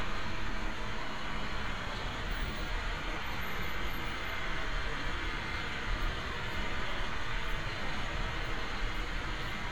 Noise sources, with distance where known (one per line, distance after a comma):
large-sounding engine, near